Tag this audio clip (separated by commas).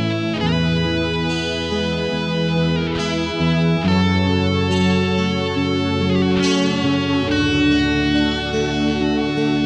Music, Plucked string instrument, Electric guitar, Musical instrument, Strum